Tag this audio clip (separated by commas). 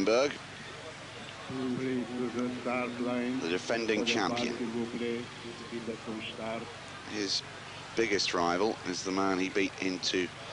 Boat, Speech